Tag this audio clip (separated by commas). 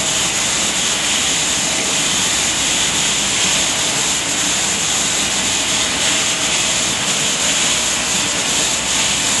Tools